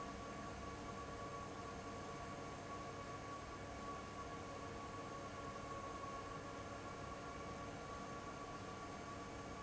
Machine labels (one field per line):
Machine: fan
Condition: abnormal